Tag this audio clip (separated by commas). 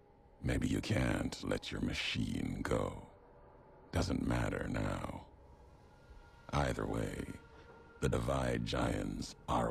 Speech, Speech synthesizer, man speaking, monologue